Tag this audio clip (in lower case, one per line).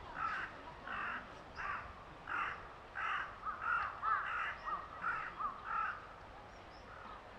wild animals
animal
bird
crow